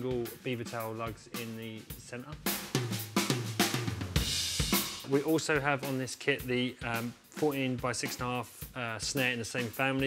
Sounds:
Music, Drum kit, Drum, Snare drum, Bass drum, Musical instrument, Cymbal

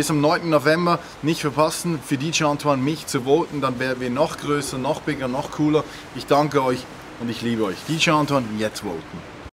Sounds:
Speech

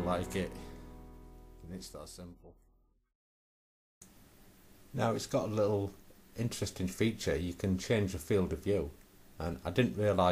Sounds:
Speech

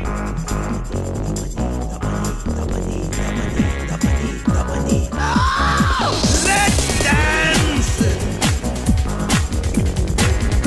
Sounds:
Music, Rhythm and blues

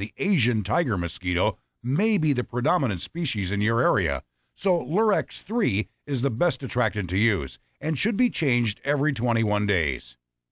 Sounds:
Speech

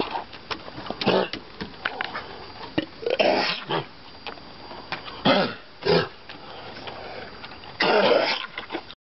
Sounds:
Throat clearing

